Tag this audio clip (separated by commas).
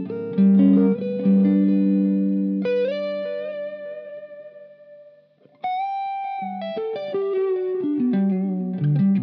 Music